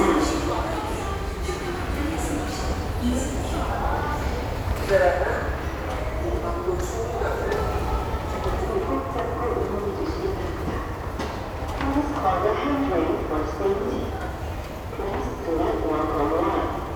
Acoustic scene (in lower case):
subway station